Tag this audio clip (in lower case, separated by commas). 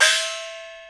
music, percussion, gong, musical instrument